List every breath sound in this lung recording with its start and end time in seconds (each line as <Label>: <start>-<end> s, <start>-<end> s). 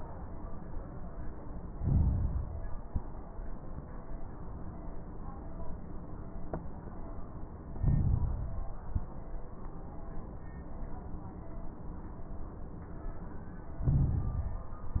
Inhalation: 1.69-2.77 s, 7.79-8.78 s, 13.83-15.00 s
Exhalation: 2.85-3.19 s, 8.84-9.20 s
Crackles: 1.69-2.77 s, 2.85-3.19 s, 7.79-8.78 s, 8.84-9.20 s, 13.83-15.00 s